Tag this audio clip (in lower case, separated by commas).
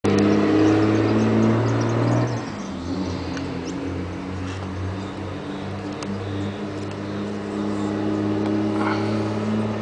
outside, urban or man-made, motor vehicle (road), car